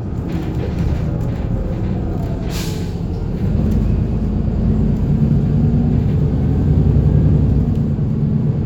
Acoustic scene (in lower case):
bus